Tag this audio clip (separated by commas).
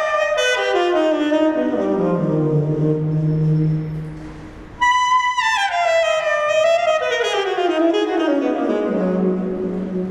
Music, inside a large room or hall